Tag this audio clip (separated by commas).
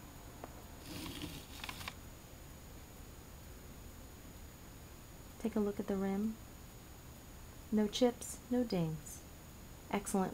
Speech